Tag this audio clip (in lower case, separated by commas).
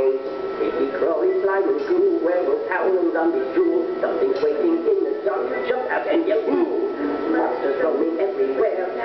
music